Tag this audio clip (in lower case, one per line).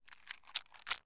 rattle